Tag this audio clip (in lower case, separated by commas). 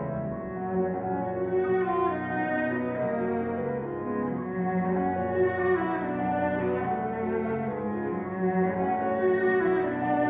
cello, sad music, music, musical instrument